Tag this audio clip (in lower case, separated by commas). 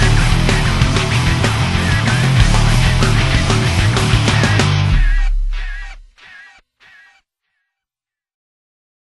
music